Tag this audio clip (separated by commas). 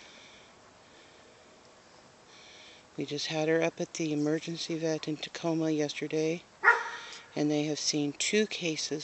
Speech, Bow-wow